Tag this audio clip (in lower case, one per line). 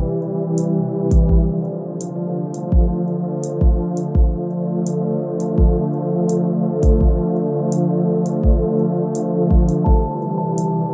music
tender music